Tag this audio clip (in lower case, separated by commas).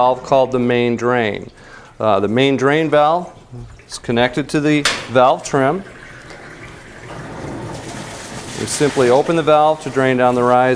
speech